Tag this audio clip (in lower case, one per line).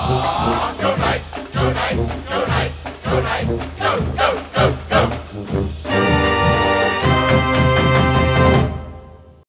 music